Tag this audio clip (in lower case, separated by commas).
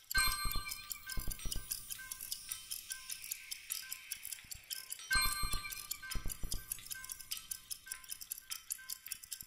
tick, music